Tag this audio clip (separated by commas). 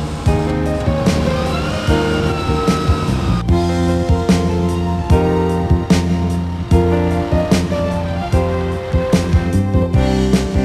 Music, Truck, Vehicle